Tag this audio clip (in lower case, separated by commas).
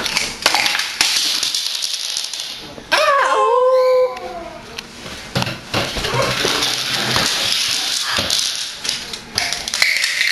domestic animals, bird